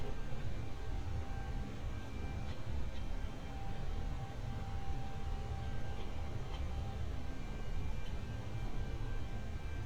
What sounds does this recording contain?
background noise